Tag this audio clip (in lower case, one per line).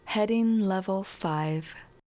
speech
human voice
female speech